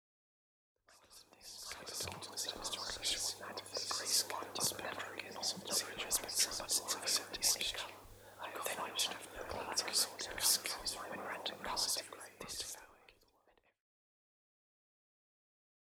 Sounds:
human voice, whispering

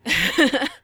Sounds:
human voice, laughter

